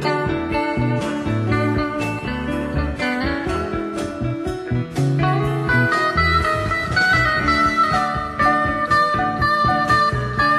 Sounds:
Steel guitar, Music

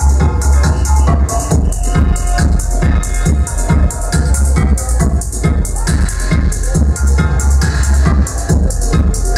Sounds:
Music, Sound effect

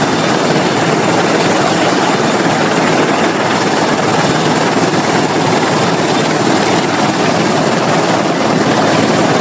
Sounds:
Vehicle, Helicopter

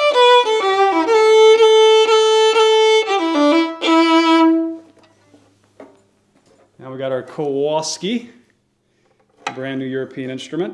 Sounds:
fiddle, Musical instrument, Music

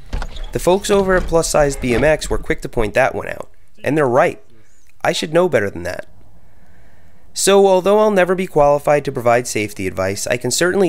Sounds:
Speech, Bicycle, Vehicle

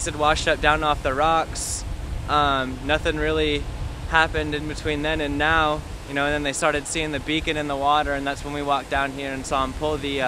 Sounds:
Ocean, Speech, surf

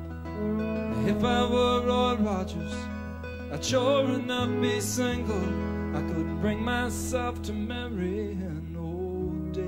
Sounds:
Music

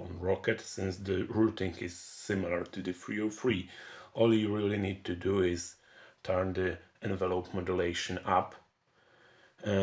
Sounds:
Speech

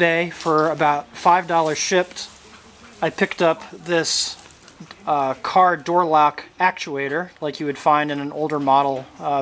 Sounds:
Speech

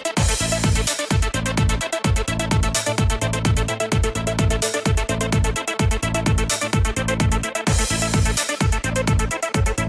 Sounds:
Music

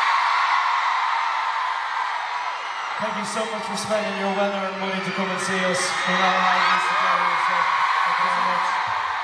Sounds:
Narration, man speaking, Speech

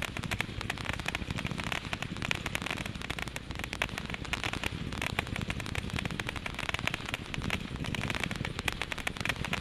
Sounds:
Fireworks

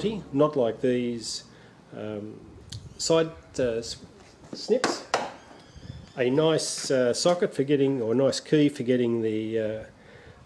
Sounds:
Speech

